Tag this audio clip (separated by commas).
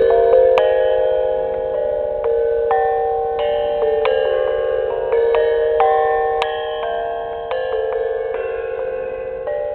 Gong